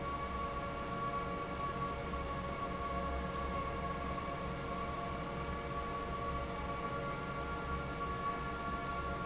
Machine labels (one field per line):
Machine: fan